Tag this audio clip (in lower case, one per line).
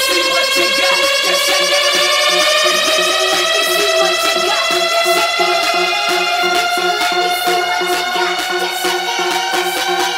music